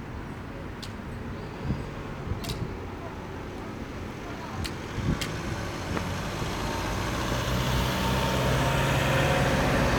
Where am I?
on a street